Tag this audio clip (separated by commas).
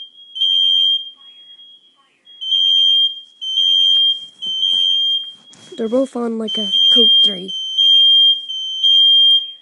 Fire alarm, Speech, Smoke detector